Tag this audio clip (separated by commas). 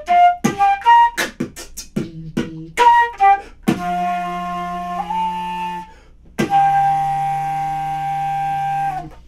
playing flute, Music, Flute, Musical instrument, Beatboxing, woodwind instrument, inside a small room